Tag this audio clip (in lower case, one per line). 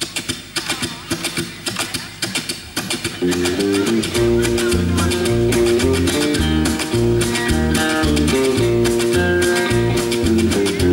music
bluegrass
speech
country
traditional music